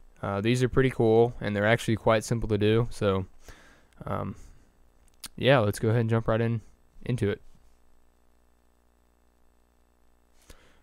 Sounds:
Speech

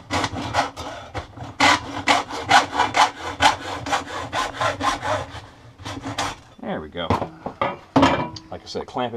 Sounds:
Tools, Speech

